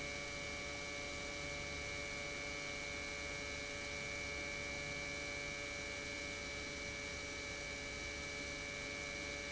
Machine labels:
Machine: pump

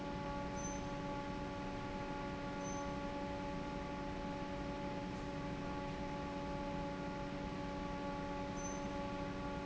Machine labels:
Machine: fan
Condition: normal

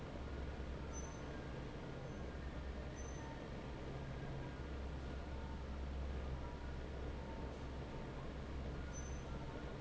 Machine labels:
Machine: fan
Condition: normal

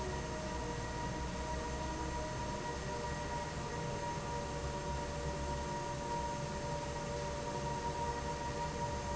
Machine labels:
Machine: fan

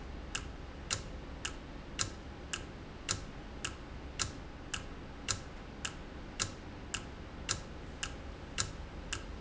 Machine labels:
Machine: valve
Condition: normal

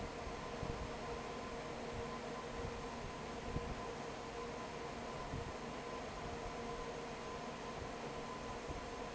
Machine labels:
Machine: fan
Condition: normal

